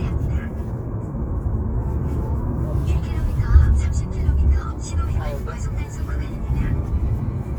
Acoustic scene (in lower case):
car